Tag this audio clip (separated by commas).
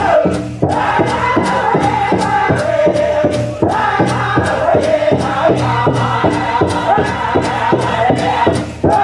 Music